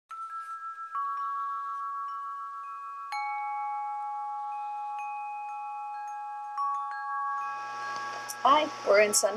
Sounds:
Music, Glockenspiel, Speech, Wind chime

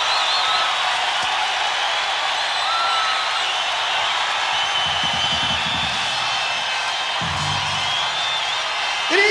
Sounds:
Speech, Music

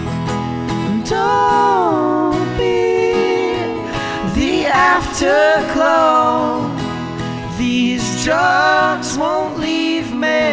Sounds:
Music, Singing

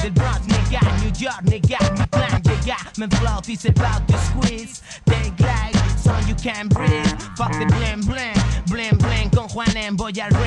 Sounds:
Music

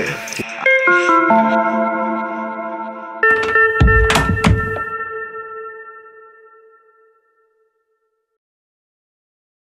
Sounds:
Music

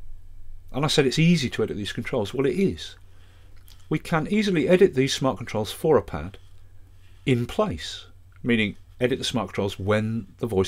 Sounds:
Speech

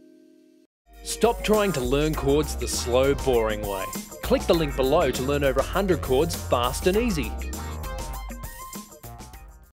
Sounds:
Music, Speech

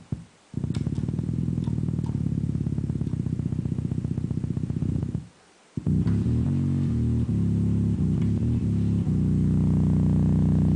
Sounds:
Music, Distortion

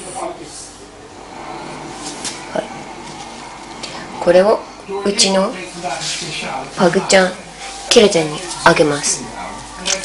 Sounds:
Speech

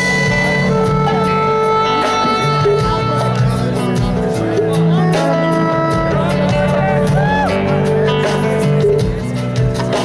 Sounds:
Speech, Bluegrass, Music

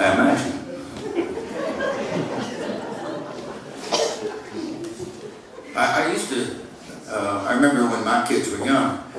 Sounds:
Speech

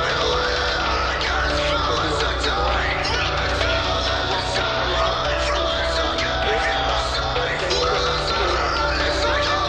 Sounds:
Music

